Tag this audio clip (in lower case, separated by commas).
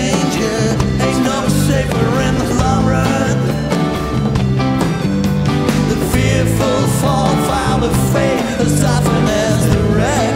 music, progressive rock, rock music, independent music